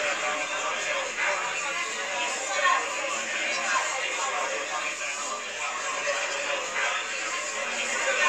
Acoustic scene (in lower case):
crowded indoor space